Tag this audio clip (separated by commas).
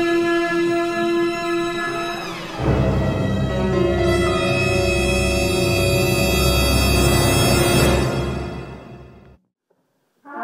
Brass instrument, Trumpet, Trombone